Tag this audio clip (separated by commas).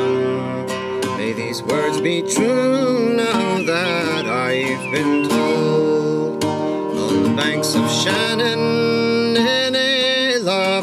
Music